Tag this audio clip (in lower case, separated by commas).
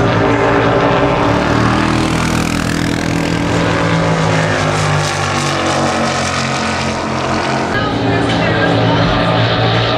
car passing by